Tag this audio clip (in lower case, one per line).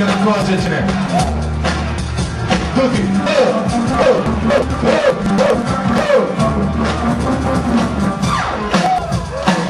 music
speech